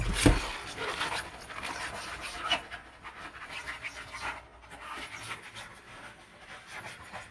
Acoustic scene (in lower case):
kitchen